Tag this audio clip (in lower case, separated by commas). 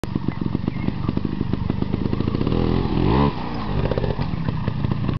vehicle, motorcycle